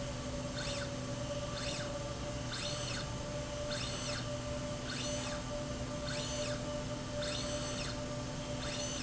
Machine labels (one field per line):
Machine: slide rail